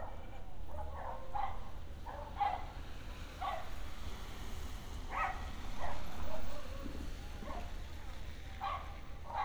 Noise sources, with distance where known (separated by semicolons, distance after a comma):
dog barking or whining